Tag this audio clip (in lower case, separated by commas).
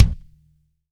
musical instrument, drum, music, bass drum, percussion